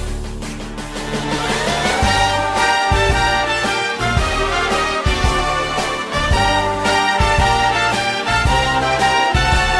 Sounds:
music

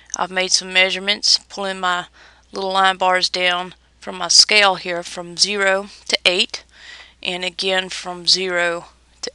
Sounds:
speech

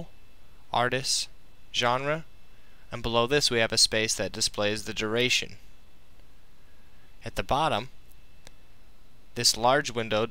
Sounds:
speech

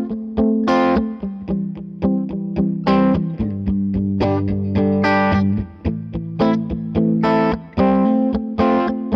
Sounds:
guitar, electric guitar, music, musical instrument, playing electric guitar, plucked string instrument, strum

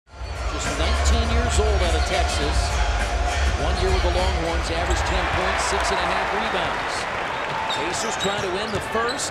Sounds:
basketball bounce

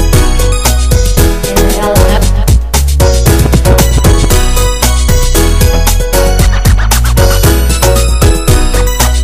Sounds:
music

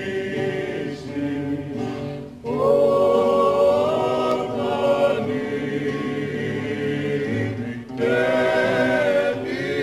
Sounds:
male singing, music, choir

